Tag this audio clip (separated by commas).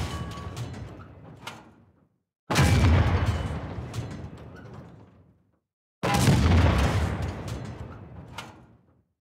Bang, Sound effect